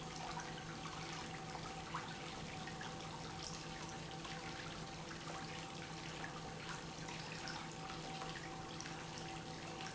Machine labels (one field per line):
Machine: pump